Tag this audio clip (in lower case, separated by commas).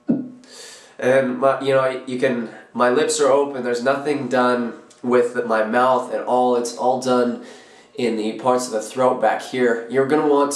speech